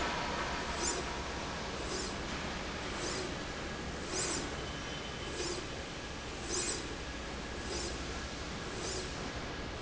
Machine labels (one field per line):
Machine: slide rail